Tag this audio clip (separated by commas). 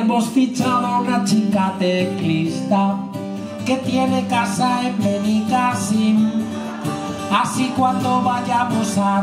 Music